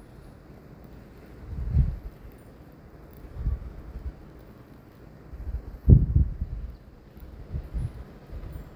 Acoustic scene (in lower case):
residential area